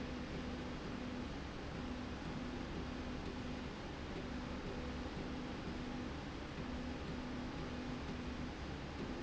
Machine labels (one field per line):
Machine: slide rail